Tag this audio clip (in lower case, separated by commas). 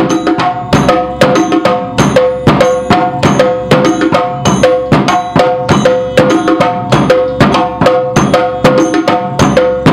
wood block, music